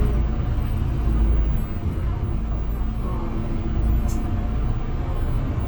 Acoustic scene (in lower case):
bus